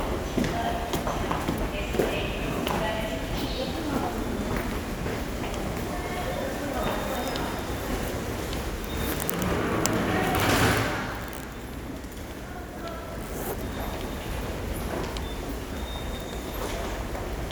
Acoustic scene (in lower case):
subway station